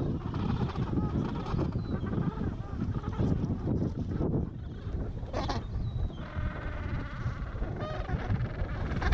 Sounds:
penguins braying

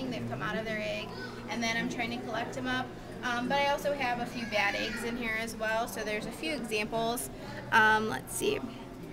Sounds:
speech

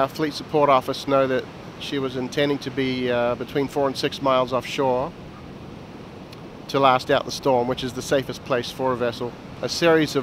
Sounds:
waves, ocean

